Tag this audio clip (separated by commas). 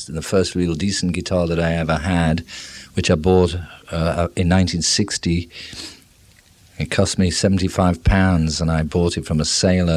Speech